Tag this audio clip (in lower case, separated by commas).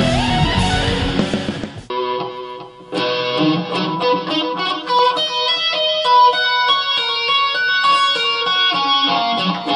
guitar, electric guitar, plucked string instrument, music, musical instrument, tapping (guitar technique)